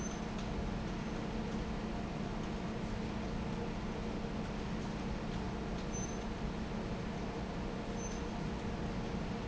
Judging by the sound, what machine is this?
fan